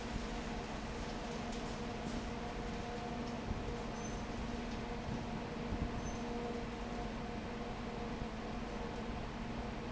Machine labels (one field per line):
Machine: fan